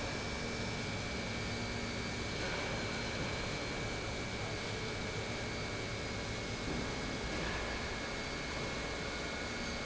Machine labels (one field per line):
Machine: pump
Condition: normal